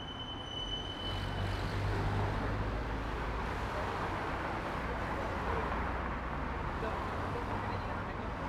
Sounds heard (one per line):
car wheels rolling
car
people talking
car engine accelerating